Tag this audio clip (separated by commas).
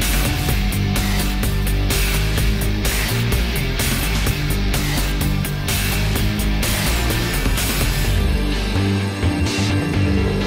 Music